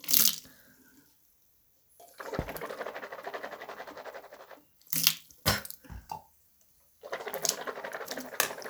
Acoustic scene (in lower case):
restroom